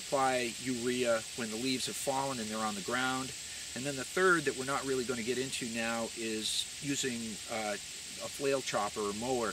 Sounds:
speech

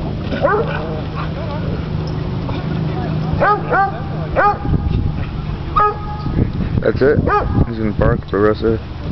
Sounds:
animal, bark, speech, canids, dog, pets

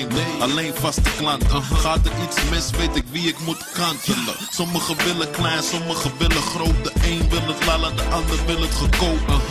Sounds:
pop music, music

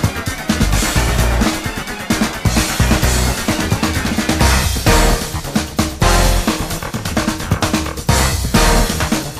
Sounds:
music, video game music

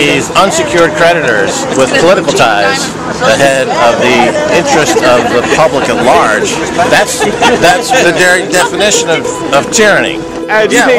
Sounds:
music, speech

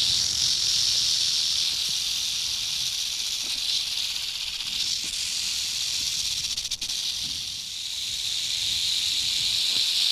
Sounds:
snake rattling

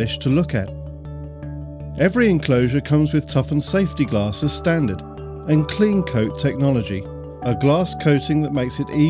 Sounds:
speech, music

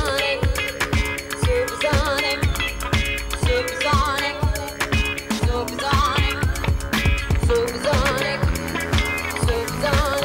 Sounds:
music, electronica

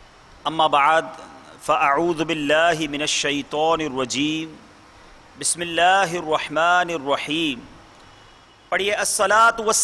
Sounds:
man speaking, speech, monologue

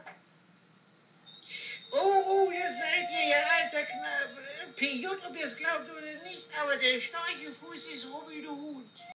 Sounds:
music, speech

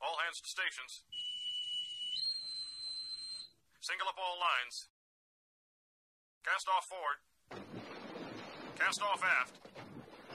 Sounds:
speech, narration

